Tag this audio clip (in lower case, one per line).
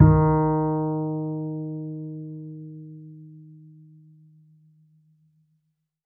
musical instrument
music
bowed string instrument